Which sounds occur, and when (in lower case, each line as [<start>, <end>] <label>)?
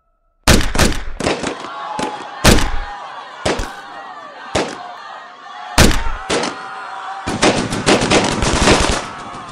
[0.00, 0.45] sound effect
[0.45, 1.02] gunshot
[1.19, 1.65] gunshot
[1.31, 9.51] speech noise
[1.93, 2.08] gunshot
[2.44, 2.70] gunshot
[3.43, 3.68] gunshot
[4.51, 4.72] gunshot
[5.75, 6.00] gunshot
[6.27, 6.48] gunshot
[7.21, 9.51] fusillade